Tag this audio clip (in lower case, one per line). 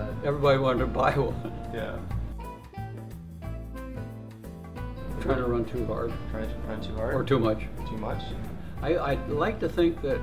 man speaking
inside a small room
music
speech